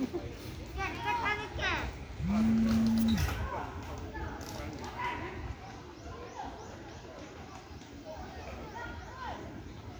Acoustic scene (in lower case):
park